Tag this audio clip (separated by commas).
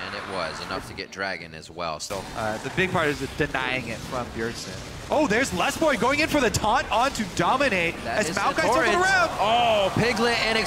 Speech